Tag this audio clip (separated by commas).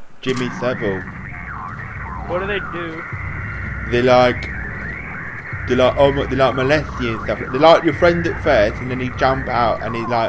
Speech